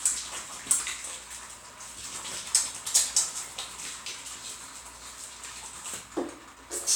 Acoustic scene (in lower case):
restroom